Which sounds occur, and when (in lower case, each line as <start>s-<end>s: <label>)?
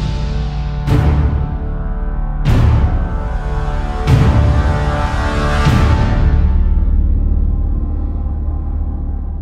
0.0s-9.4s: music